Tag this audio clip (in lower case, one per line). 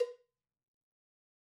cowbell
bell